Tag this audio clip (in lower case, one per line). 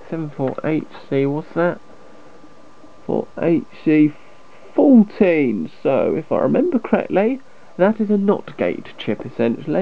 monologue